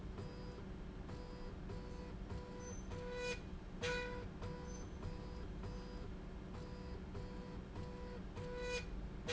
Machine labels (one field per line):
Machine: slide rail